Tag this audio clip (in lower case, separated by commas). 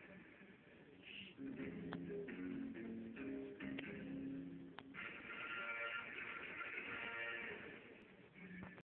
television, music